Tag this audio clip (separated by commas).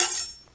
Cutlery, Domestic sounds